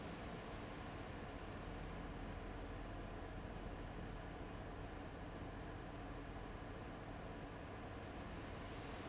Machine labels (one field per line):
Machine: fan